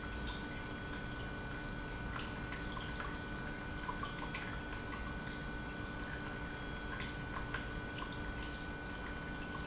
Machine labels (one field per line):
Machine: pump